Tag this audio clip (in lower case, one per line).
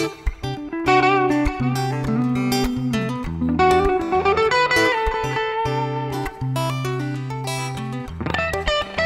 plucked string instrument
acoustic guitar
guitar
musical instrument
music
electric guitar
strum